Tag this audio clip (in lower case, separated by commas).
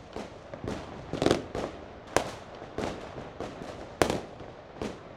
explosion, fireworks